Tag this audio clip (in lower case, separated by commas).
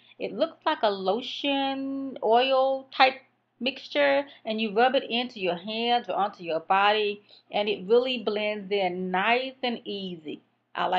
speech